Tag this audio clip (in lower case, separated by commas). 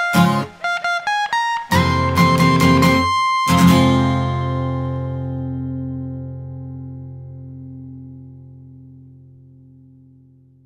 guitar, music, plucked string instrument, musical instrument, acoustic guitar